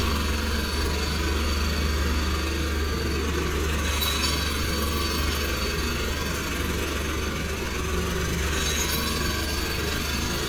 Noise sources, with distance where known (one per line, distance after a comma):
rock drill, near